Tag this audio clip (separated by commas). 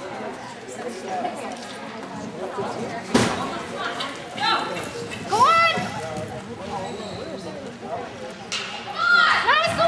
Speech